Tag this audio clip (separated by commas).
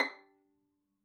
Musical instrument, Bowed string instrument, Music